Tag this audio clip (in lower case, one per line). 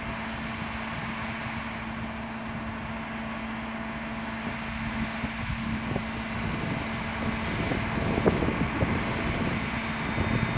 vehicle
truck